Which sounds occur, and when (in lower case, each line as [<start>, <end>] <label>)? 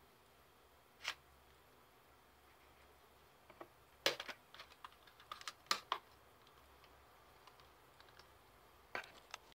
[0.00, 9.34] background noise
[8.89, 9.10] surface contact
[9.10, 9.34] generic impact sounds